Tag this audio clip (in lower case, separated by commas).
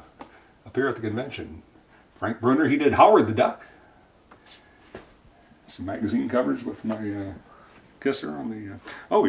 speech, inside a small room